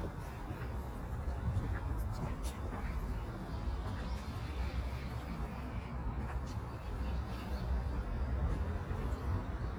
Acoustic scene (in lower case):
street